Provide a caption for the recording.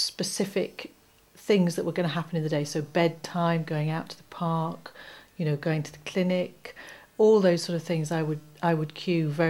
Woman talking in a normal voice